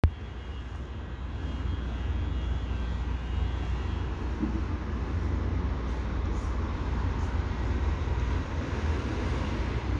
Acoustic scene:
residential area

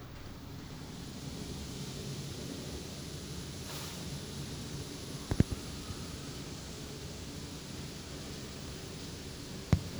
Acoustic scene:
elevator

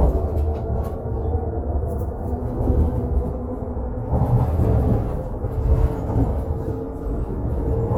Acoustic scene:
bus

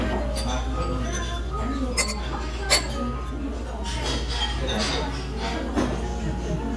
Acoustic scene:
restaurant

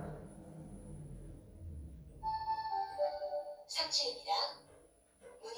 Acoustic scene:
elevator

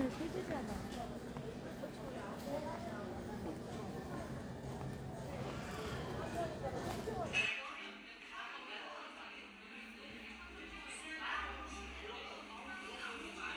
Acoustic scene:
crowded indoor space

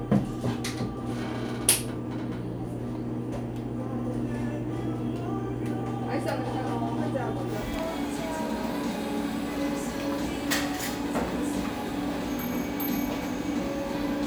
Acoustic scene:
cafe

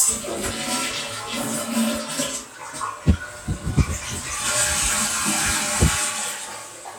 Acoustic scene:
restroom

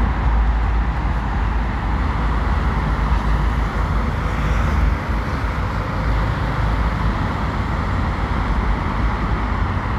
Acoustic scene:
street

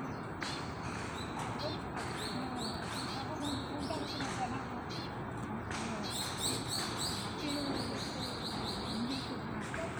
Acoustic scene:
park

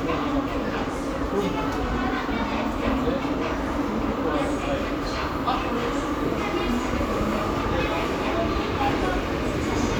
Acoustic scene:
subway station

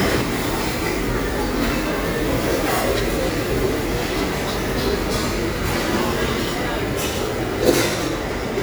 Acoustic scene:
restaurant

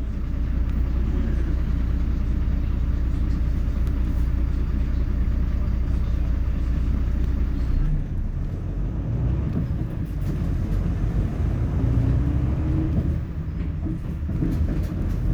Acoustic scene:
bus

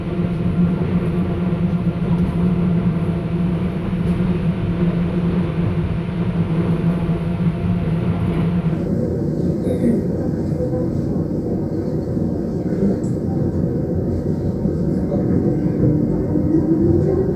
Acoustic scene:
subway train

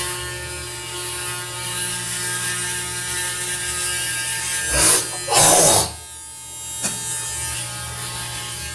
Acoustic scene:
restroom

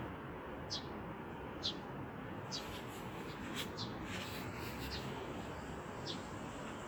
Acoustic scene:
residential area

